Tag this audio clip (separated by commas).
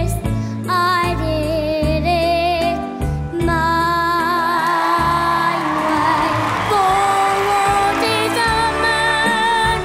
Singing, inside a large room or hall, Music